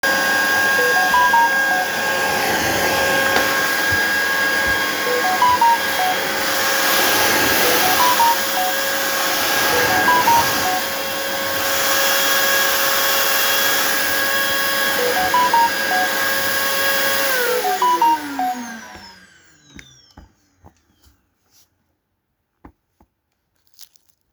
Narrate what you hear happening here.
I was vacuum cleaning when my phone kept sending notifications. I turned off the vacuum cleaner and went to check my phone.